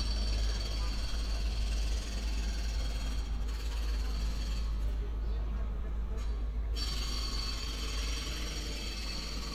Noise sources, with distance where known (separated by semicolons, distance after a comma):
jackhammer, far